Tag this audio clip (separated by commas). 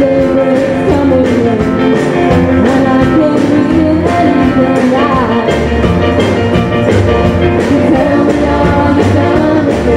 Rock and roll, Music